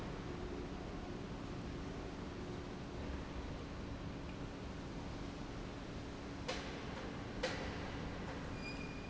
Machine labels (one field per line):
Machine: pump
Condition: normal